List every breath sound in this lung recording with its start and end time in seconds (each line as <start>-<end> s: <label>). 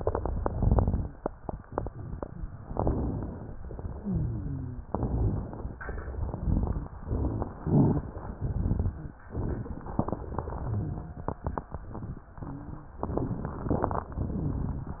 0.00-1.06 s: crackles
2.62-3.46 s: inhalation
2.62-3.46 s: crackles
3.64-4.71 s: exhalation
4.02-4.82 s: wheeze
4.89-5.71 s: inhalation
4.89-5.71 s: crackles
5.90-6.93 s: exhalation
6.09-6.93 s: crackles
6.98-7.55 s: inhalation
6.98-7.55 s: crackles
7.61-8.16 s: inhalation
7.61-8.16 s: crackles
8.33-9.17 s: exhalation
8.33-9.17 s: crackles